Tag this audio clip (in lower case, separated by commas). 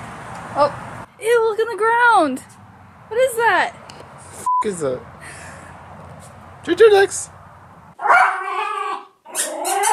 speech, canids